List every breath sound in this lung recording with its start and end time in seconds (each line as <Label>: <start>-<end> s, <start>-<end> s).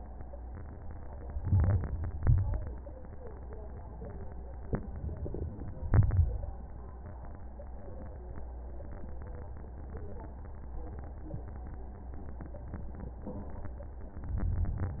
Inhalation: 1.35-2.20 s, 5.86-6.58 s, 14.27-15.00 s
Exhalation: 2.23-3.07 s